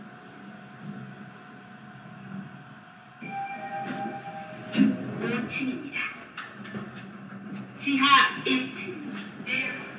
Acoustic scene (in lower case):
elevator